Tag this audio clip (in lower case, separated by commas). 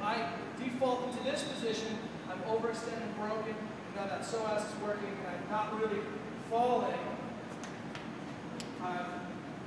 speech, inside a large room or hall